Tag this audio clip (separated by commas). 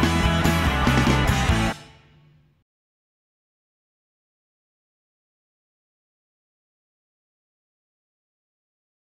Music